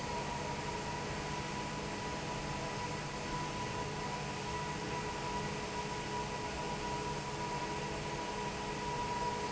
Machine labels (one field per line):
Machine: fan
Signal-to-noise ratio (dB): -6 dB